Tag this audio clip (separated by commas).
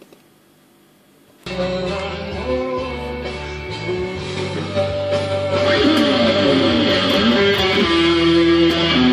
Musical instrument, Plucked string instrument, Music, Electric guitar, Guitar